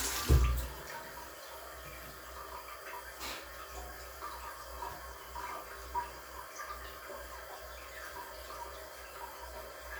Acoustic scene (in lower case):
restroom